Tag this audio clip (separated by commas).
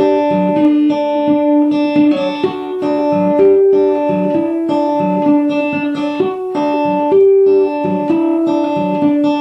Music